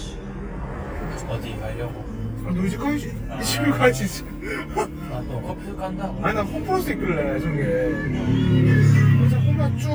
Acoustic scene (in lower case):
car